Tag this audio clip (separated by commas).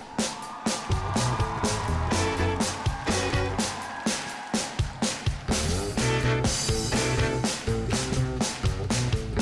Music